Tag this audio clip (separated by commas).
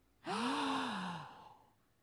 Respiratory sounds, Gasp, Breathing